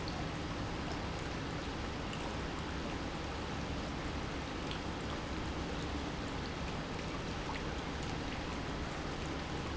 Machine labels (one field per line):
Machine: pump